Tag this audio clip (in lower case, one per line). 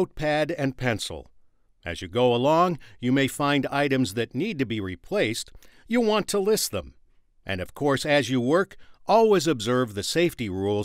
speech